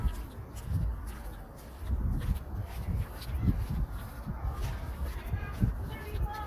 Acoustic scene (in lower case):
residential area